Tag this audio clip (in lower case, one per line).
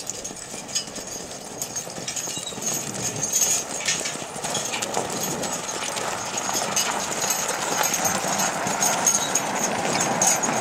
horse
clip-clop
horse clip-clop
animal